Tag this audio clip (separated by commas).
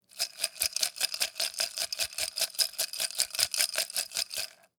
Rattle, Glass